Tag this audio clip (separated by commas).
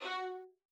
Bowed string instrument, Musical instrument, Music